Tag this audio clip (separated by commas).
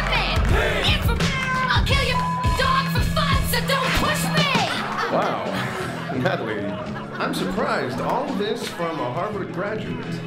rapping